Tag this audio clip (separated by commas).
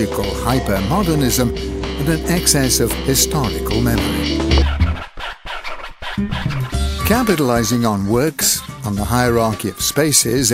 Scratching (performance technique)